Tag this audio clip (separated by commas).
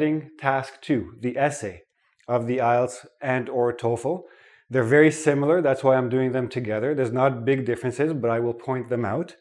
Speech